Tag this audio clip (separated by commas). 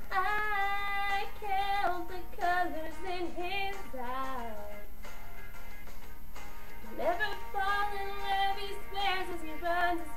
Female singing